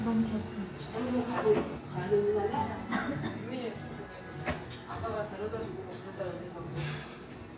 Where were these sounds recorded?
in a cafe